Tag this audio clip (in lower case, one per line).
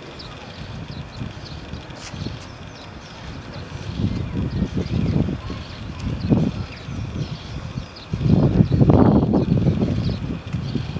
water vehicle
vehicle